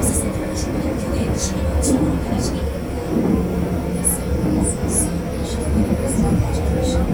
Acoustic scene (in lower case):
subway train